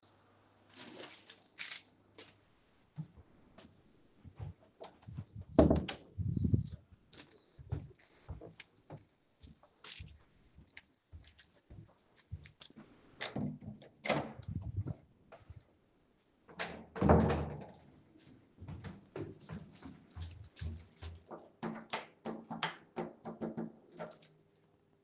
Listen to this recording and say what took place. grabbing keychain. closing door. Opening door. Walking in. Between and afterwards